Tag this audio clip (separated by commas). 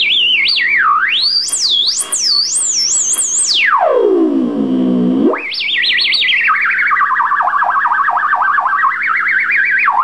Theremin, Music